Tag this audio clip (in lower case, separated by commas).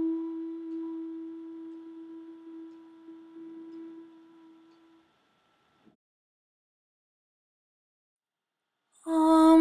mantra, music